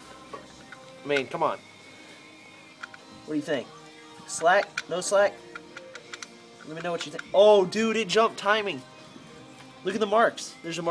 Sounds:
Speech, Music

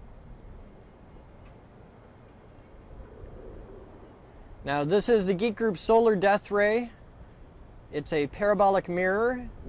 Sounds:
Speech

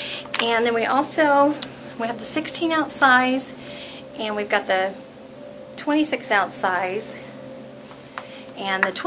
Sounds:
Speech

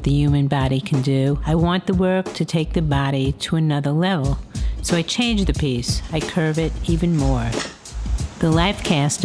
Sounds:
Speech, Music

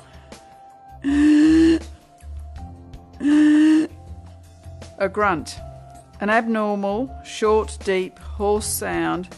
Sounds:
Speech, Music

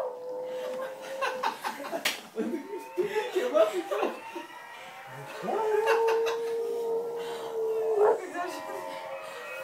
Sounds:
dog howling

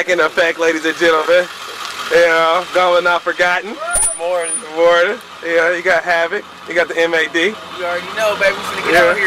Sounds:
Speech, Vehicle

